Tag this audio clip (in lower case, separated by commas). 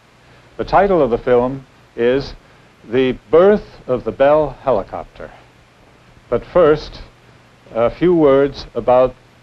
speech